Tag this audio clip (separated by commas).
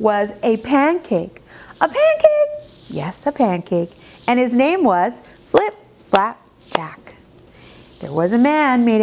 Speech